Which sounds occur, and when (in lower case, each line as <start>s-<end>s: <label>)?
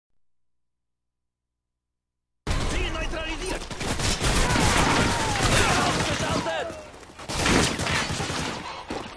0.1s-2.4s: background noise
0.1s-9.1s: video game sound
2.7s-3.6s: speech synthesizer
3.3s-3.7s: run
3.8s-6.5s: machine gun
4.2s-6.8s: shout
5.5s-6.8s: speech synthesizer
7.2s-8.6s: machine gun
8.2s-9.1s: pant